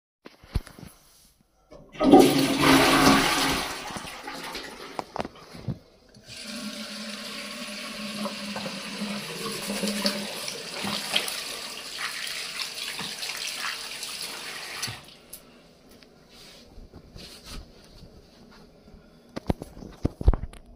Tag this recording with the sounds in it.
toilet flushing, running water